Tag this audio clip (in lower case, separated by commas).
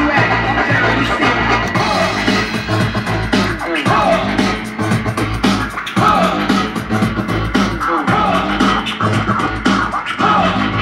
scratching (performance technique), hip hop music, music, electronic music, house music